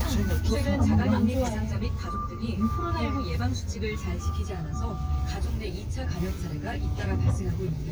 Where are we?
in a car